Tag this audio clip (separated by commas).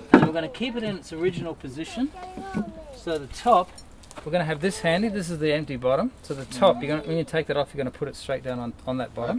Speech